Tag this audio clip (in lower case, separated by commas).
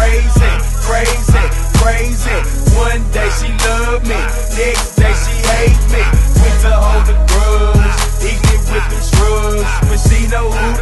music, pop music